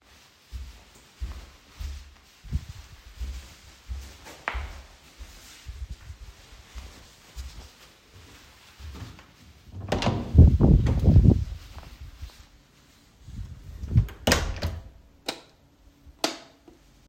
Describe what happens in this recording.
walking in the hallway, entering the living room and turning on the lights